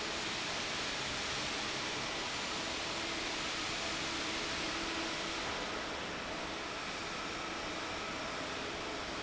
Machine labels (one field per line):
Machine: fan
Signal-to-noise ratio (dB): -6 dB